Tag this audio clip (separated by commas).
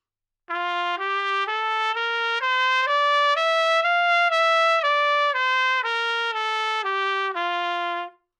Brass instrument, Music, Trumpet, Musical instrument